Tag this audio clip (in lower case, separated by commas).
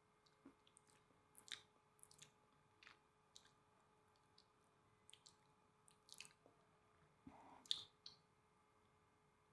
people eating